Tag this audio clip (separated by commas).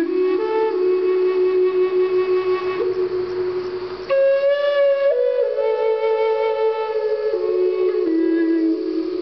Music